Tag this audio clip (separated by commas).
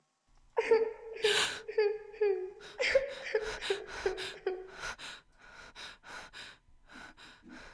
Breathing, Respiratory sounds, Human voice, sobbing